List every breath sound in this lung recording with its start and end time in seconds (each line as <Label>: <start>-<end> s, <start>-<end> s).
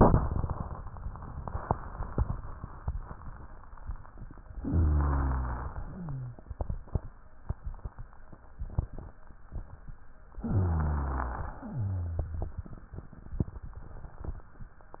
Inhalation: 4.64-5.79 s, 10.40-11.51 s
Exhalation: 5.79-6.45 s, 11.51-12.58 s
Wheeze: 5.79-6.45 s, 11.51-12.58 s
Rhonchi: 4.64-5.79 s, 10.40-11.51 s